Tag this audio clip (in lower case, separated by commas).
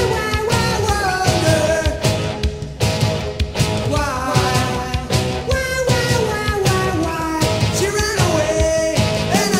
roll, music